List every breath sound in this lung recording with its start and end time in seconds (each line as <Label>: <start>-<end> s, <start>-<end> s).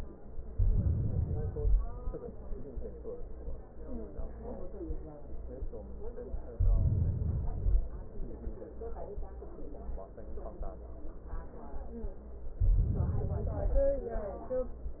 Inhalation: 0.50-2.00 s, 6.57-8.01 s, 12.62-14.06 s